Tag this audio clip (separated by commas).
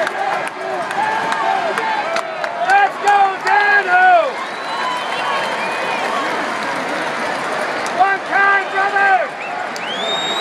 Speech